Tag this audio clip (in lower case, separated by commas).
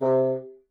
musical instrument, music, wind instrument